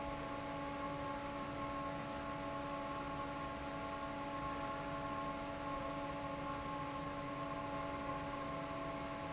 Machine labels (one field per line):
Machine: fan